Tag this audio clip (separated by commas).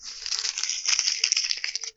crinkling